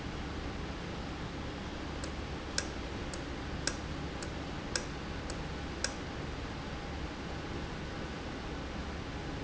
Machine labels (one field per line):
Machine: valve